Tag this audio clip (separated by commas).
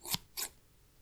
home sounds, Scissors